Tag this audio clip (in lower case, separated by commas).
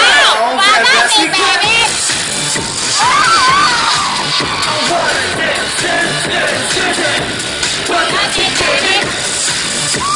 music, speech